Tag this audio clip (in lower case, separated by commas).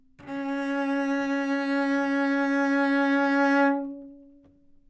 bowed string instrument, music, musical instrument